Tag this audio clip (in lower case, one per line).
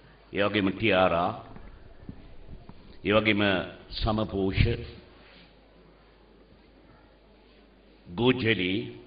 male speech
speech